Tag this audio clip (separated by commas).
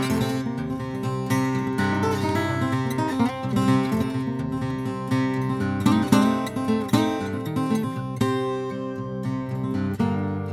Plucked string instrument, Musical instrument, Music, Guitar, Acoustic guitar